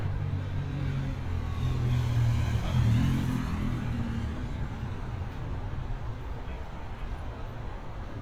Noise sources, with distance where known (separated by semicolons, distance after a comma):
medium-sounding engine, near